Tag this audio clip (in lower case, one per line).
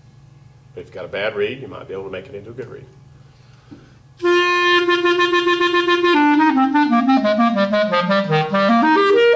woodwind instrument
musical instrument
clarinet
speech
inside a small room
music